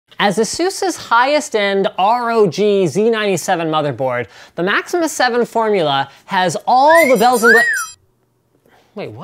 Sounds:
speech
music
inside a large room or hall

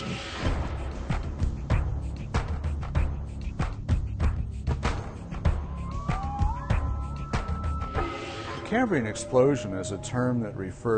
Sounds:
speech
music

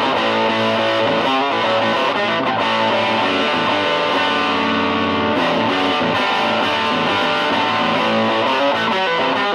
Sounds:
music
guitar
electric guitar
plucked string instrument
musical instrument

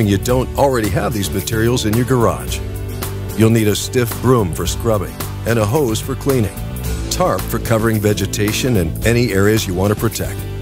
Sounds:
speech
music

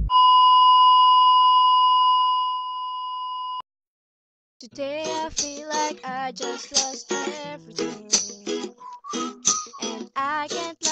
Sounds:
singing
music

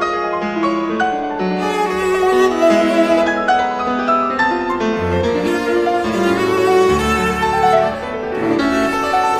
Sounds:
music

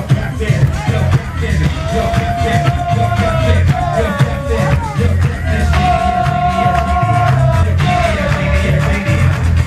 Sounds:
music

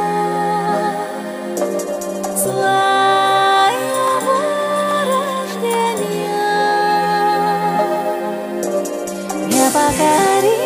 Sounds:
music

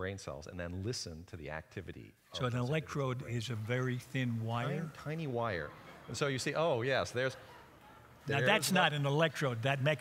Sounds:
speech

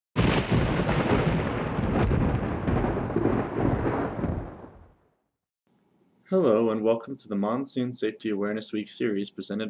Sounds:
thunderstorm
outside, rural or natural
speech

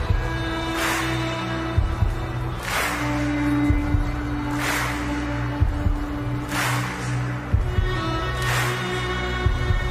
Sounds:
violin
music
musical instrument

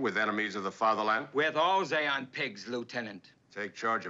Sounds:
speech

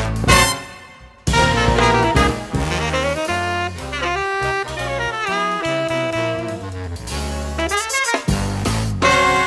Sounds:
music

